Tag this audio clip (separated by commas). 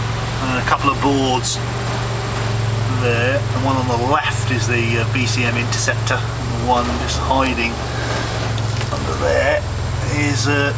Vehicle, Speech